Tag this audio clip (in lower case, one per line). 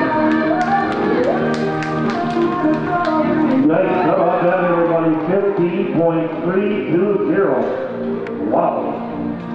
music
speech